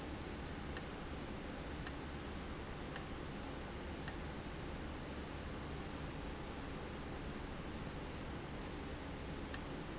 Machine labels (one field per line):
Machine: valve